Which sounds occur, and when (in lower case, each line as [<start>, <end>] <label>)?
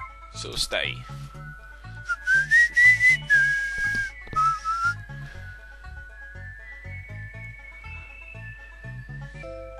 [0.00, 9.75] music
[0.00, 9.75] video game sound
[0.30, 1.32] man speaking
[2.00, 4.09] whistling
[4.30, 4.98] whistling
[5.01, 5.87] breathing
[9.03, 9.56] breathing